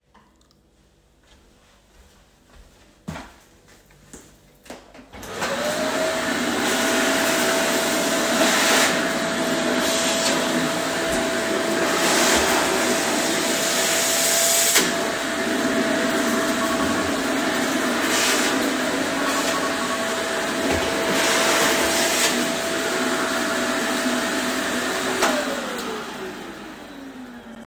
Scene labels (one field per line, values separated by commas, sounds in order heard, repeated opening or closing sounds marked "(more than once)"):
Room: kitchen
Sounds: footsteps, vacuum cleaner, phone ringing